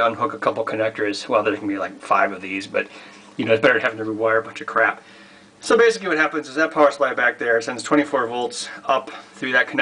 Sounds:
Speech

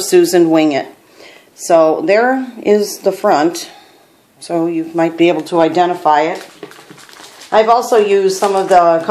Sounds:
Speech

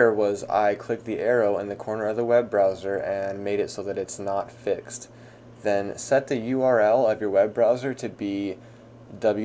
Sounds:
Speech

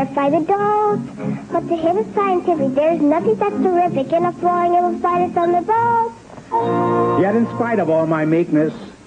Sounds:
Music, Speech

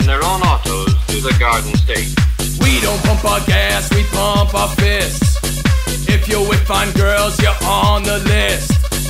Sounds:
Speech, Music

